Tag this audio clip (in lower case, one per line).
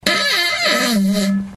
fart